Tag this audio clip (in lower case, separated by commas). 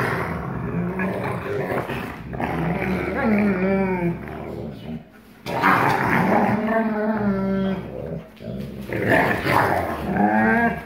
dog growling